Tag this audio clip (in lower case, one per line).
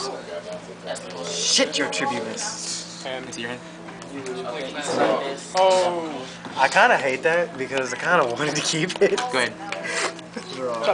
speech